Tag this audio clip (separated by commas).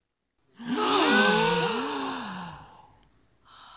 Breathing, Respiratory sounds, Gasp